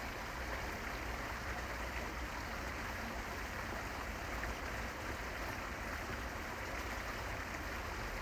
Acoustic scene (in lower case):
park